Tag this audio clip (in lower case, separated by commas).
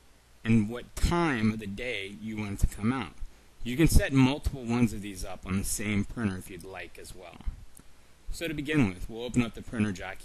speech